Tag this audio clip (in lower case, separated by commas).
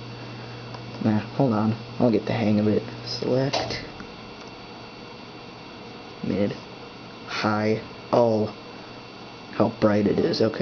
speech